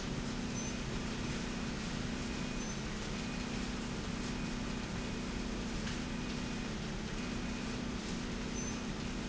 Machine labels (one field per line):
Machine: slide rail